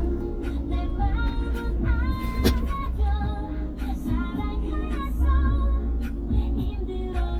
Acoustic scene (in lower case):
car